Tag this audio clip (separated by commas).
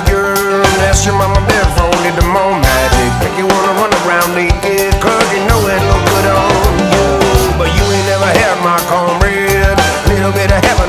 Music